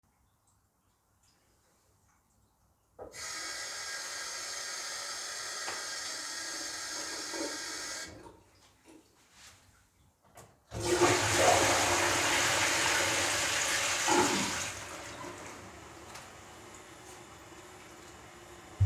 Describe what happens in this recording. I turned on the bathroom tap and let water run for a few seconds. After turning off the tap I flushed the toilet. The running water and toilet flush were sequential.